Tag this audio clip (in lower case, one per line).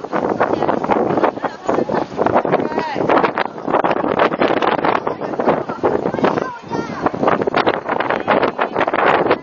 speech